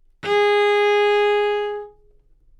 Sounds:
musical instrument
bowed string instrument
music

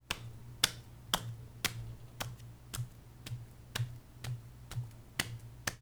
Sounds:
hands

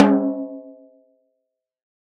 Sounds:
percussion
musical instrument
drum
music
snare drum

